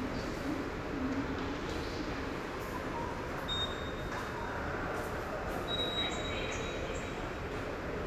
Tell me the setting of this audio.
subway station